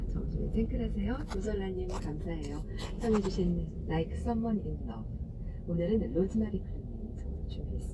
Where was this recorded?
in a car